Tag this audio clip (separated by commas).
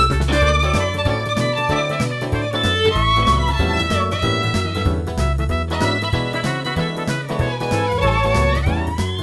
Rock and roll, Music